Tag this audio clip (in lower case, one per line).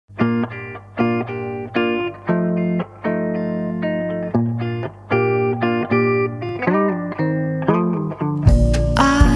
effects unit